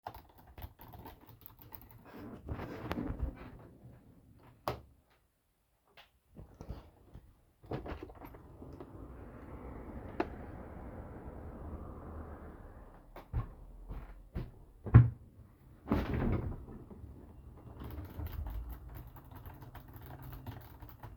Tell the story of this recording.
I was typing on the keyboard then i got up from the chair and flipped the light switch and then opened the window. Outside was traffic. Then i got back on the chair and started typing again.